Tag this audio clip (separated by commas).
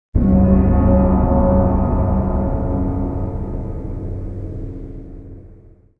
Musical instrument, Percussion, Gong, Music